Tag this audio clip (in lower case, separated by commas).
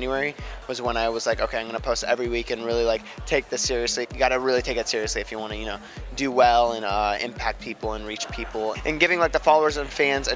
music, speech